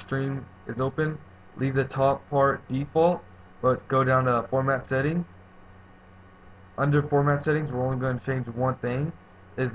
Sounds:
Speech

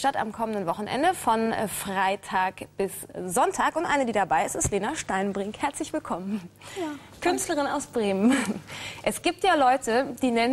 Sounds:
Speech

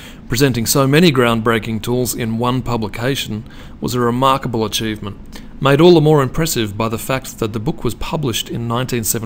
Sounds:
Speech

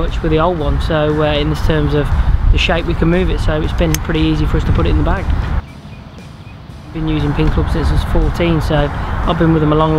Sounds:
Speech

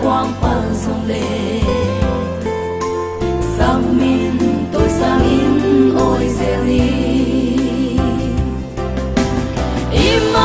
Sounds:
Music, Happy music, Singing

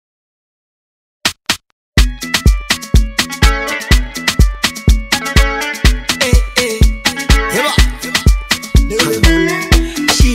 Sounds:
Afrobeat

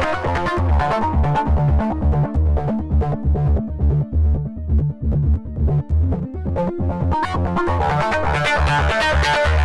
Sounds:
Music

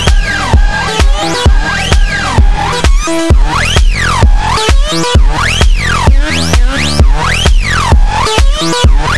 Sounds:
Music

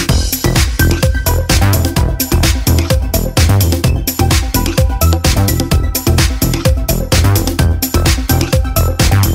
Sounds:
Music

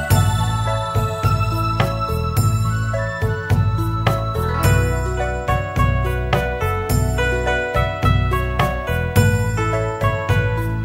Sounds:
Music

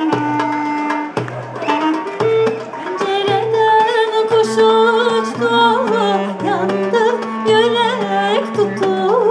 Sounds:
Music

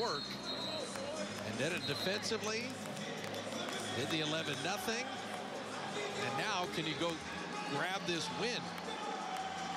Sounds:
basketball bounce

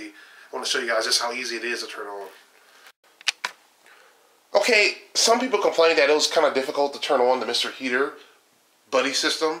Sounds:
Speech

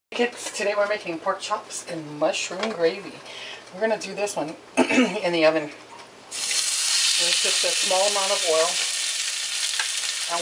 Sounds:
Speech

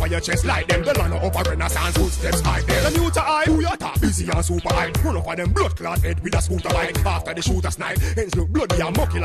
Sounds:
Music

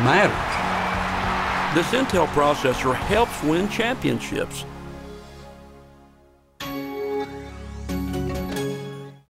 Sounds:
Music, Speech

